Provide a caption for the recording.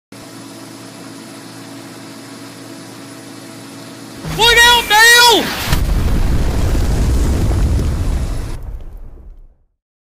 Yelling followed by a pop and silence